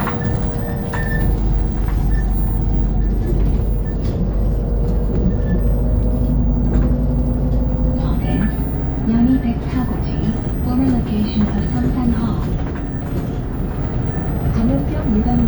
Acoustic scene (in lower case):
bus